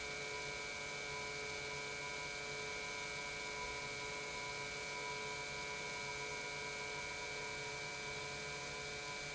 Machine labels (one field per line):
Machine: pump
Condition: normal